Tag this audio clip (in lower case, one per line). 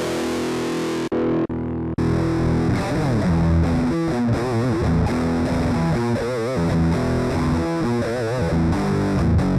music